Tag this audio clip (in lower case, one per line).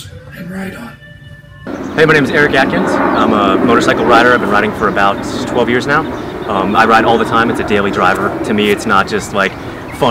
speech